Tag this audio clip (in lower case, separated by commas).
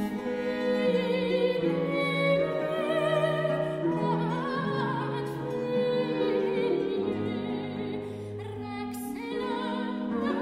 music